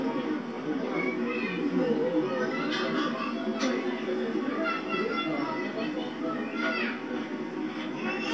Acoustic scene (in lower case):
park